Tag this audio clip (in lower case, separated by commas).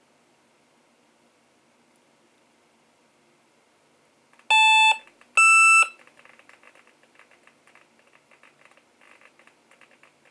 silence, bleep, inside a small room